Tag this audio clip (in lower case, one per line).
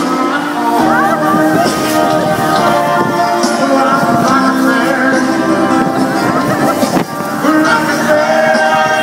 speech
music
wind noise (microphone)